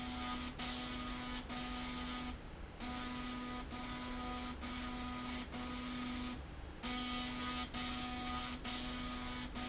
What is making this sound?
slide rail